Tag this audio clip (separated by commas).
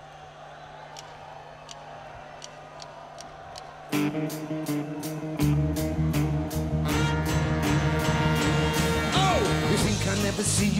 Music